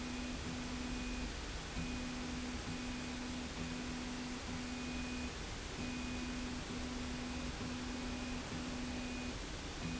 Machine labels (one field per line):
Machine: slide rail